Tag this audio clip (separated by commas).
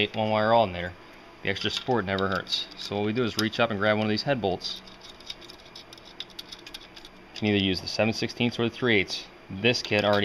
Speech